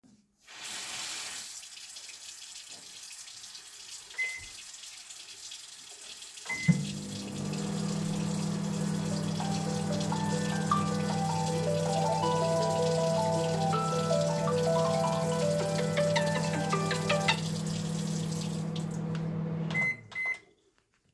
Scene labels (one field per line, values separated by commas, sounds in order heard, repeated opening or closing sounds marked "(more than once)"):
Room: kitchen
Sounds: running water, microwave, phone ringing